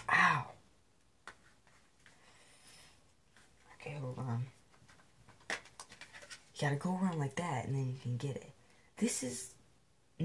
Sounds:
speech

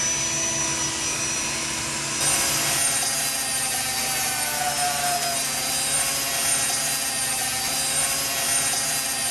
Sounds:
drill

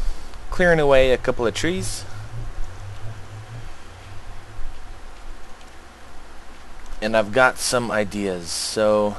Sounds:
speech

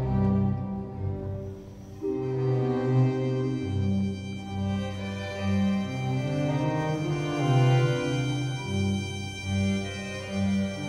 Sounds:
music
musical instrument
violin

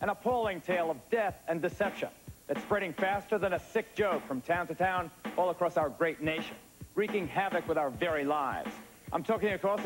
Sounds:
speech
music

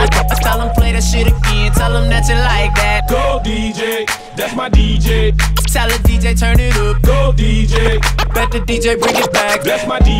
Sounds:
music
scratching (performance technique)
house music
electronic music

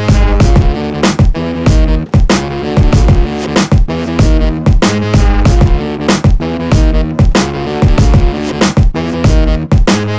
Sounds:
music
pop music
dance music

